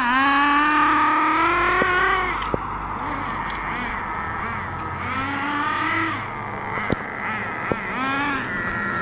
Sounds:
car
vehicle

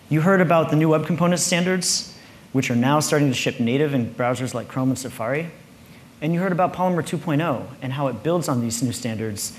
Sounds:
speech

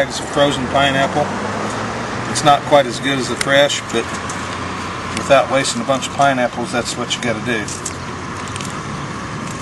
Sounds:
speech
outside, urban or man-made

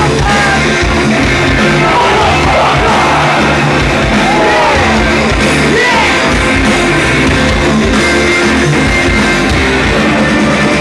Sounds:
singing
music

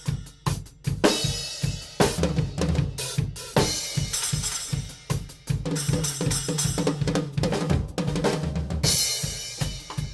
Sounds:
music
hi-hat

